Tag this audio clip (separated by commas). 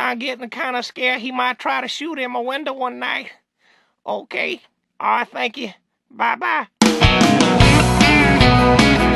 Speech, Music